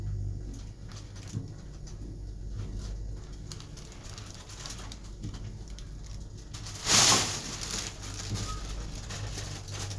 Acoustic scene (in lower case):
elevator